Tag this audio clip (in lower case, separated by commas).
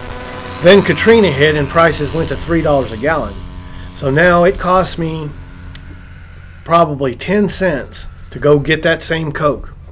bicycle, speech